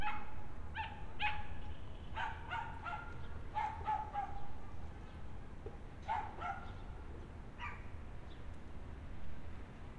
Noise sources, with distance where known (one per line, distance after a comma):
dog barking or whining